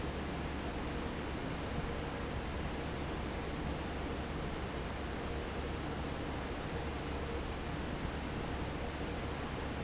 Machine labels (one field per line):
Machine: fan